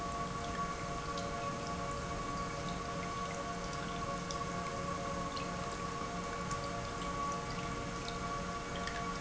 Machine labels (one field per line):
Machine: pump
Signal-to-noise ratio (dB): -6 dB